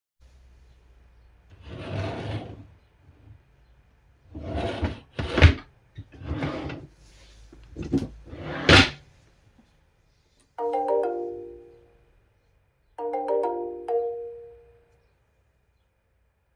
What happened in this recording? I was sitting at my desk and searching something in my drawers; then I received a message on my phone